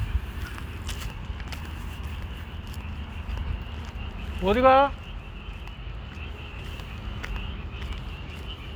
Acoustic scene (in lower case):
park